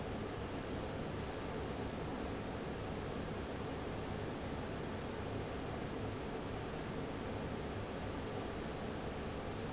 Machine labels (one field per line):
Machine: fan